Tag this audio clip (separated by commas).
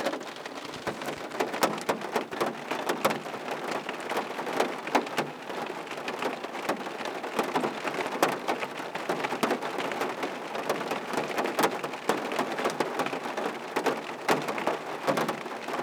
Rain, Water